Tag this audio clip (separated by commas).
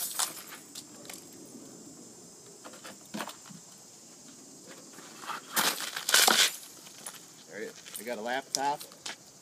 Speech, outside, urban or man-made